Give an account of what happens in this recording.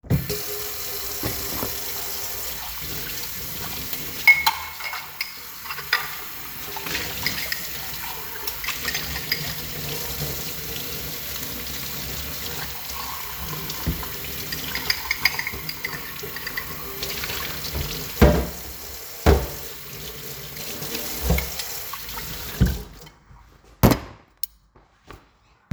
The recording device was placed on the kitchen counter. I turned on the tap, rinsed dishes and cutlery under running water, and placed them down with clear clinking sounds. I then turned the water off.